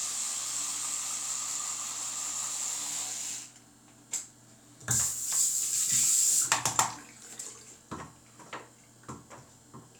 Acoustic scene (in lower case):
restroom